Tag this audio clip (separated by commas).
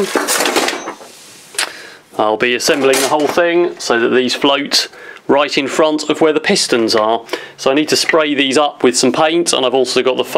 inside a small room, Speech